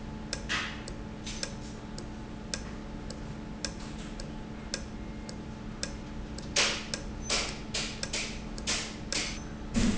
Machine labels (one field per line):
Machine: valve